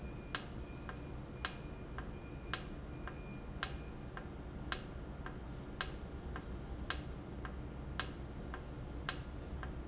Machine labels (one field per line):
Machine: valve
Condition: normal